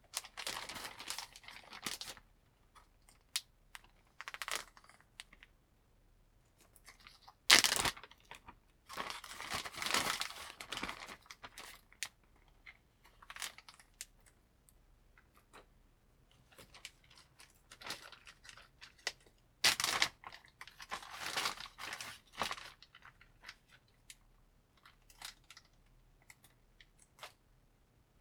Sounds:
crinkling

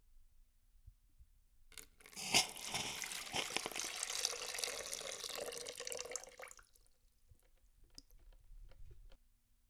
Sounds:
Hiss

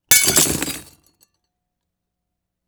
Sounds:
Glass, Shatter

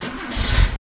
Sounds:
Vehicle, Motor vehicle (road), Engine, Car

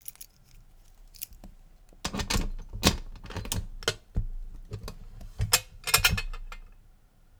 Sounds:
home sounds, Keys jangling

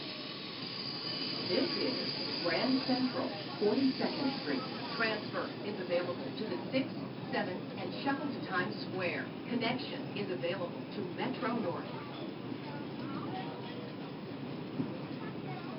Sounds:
Subway, Vehicle, Rail transport

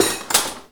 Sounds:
silverware, dishes, pots and pans, home sounds

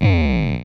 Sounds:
Music, Musical instrument

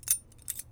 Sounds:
Keys jangling, Domestic sounds

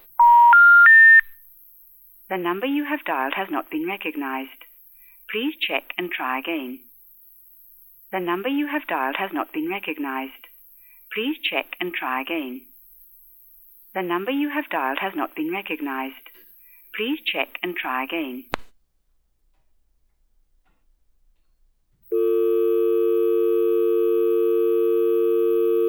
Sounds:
Telephone, Alarm

